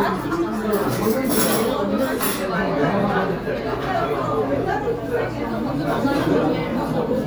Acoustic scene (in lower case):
restaurant